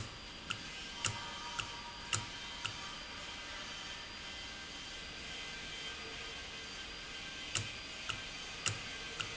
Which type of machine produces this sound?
valve